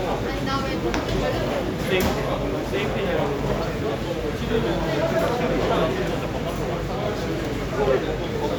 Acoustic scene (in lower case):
crowded indoor space